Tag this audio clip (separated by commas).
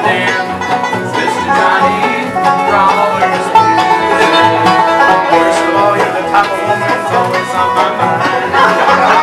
Music